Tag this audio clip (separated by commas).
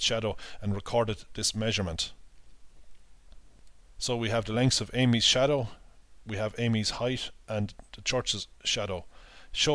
inside a small room, Speech